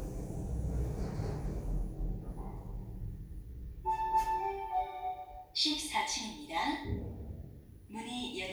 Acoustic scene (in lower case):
elevator